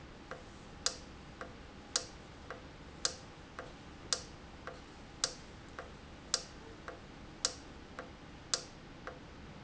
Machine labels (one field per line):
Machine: valve